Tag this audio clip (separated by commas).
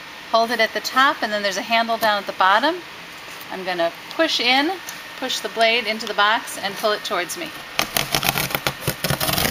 Speech